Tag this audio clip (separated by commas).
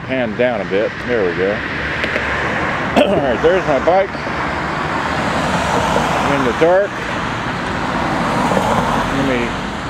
Speech, Vehicle